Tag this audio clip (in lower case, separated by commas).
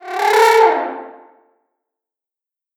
music, musical instrument, animal, brass instrument